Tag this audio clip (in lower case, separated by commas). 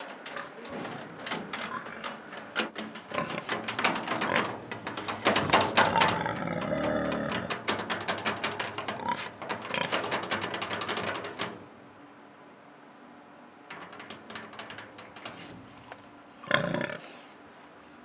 livestock, animal